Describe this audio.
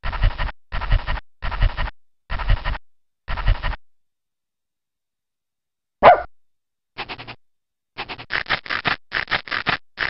A dog is panting very fast over and over then barks and scratches